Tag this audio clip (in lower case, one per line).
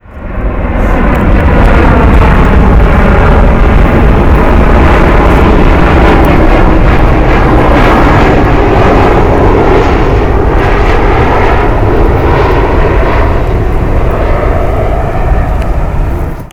vehicle
aircraft
fixed-wing aircraft